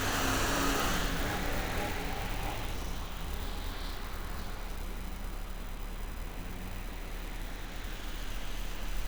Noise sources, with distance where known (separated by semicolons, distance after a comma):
engine of unclear size, near